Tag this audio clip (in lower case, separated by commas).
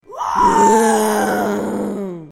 screaming, human voice